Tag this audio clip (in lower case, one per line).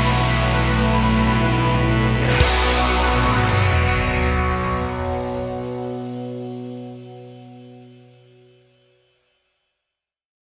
progressive rock
music